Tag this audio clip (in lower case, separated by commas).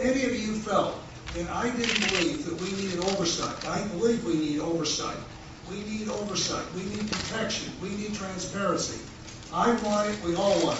speech